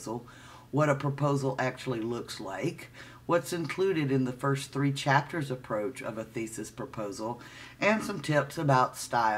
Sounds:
Speech

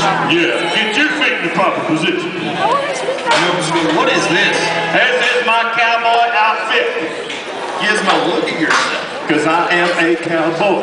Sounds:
Speech

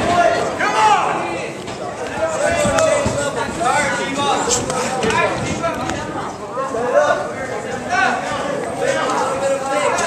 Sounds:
inside a public space, Speech

